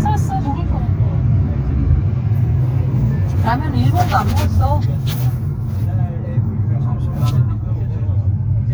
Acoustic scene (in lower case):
car